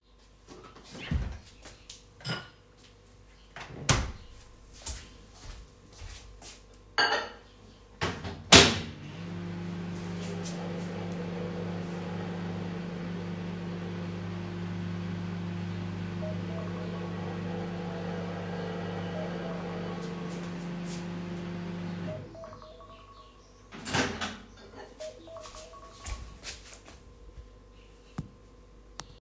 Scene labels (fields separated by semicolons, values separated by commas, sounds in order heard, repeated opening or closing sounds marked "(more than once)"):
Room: kitchen; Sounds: footsteps, cutlery and dishes, microwave, phone ringing